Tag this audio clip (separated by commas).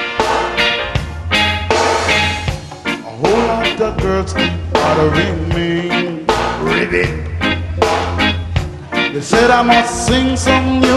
Music